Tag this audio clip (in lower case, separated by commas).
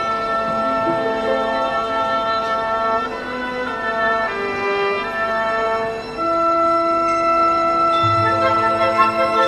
music